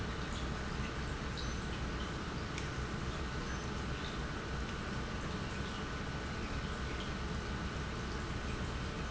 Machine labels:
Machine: pump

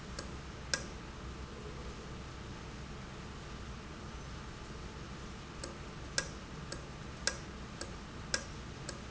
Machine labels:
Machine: valve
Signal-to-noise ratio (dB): 0 dB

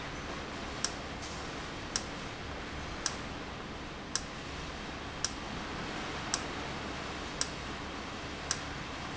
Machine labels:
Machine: valve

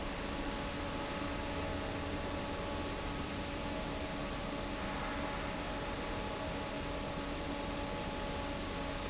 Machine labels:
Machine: fan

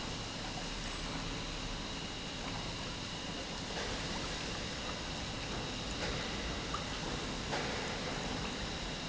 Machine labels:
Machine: pump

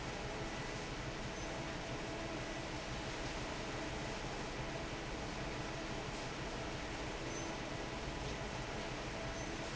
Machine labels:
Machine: fan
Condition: normal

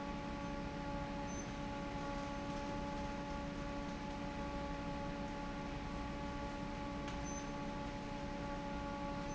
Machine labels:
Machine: fan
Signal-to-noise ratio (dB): 0 dB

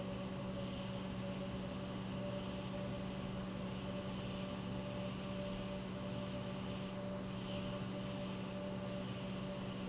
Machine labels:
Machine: pump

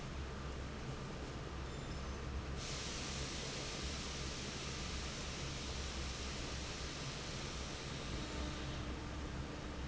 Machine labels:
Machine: fan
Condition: normal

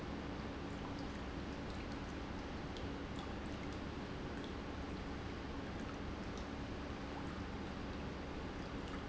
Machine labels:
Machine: pump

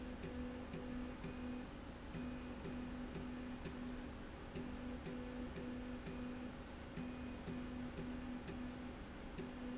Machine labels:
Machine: slide rail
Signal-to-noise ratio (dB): 6 dB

